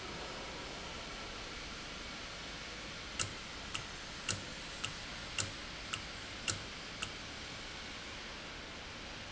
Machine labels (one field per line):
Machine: valve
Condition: normal